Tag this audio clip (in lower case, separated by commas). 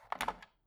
telephone, alarm